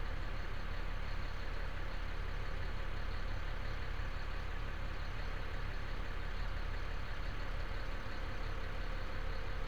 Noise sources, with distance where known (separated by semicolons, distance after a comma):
large-sounding engine, near